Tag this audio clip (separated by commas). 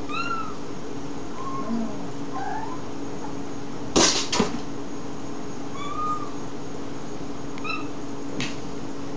Cat, Domestic animals, Animal, Speech